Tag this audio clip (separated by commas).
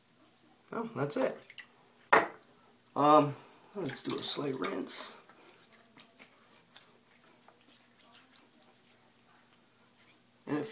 inside a small room, Speech